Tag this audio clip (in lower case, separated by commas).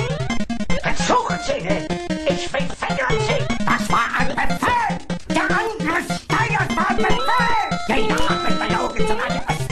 speech